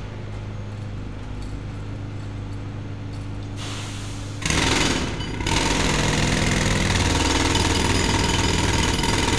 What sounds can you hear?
jackhammer